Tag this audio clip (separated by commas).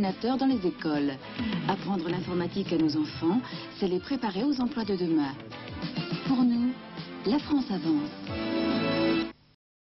Speech, Music